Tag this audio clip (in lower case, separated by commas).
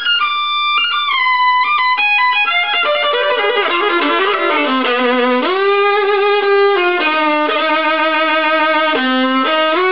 fiddle, musical instrument, music